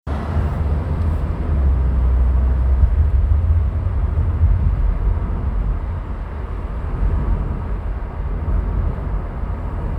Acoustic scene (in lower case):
car